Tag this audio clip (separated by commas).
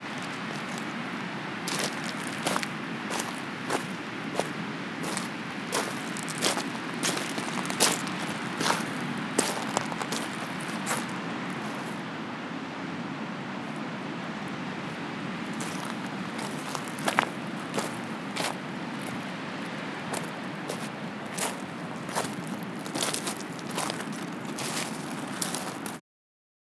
Ocean, Water, surf